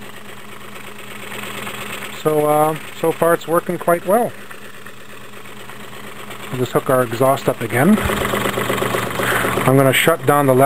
An engine works while a man talks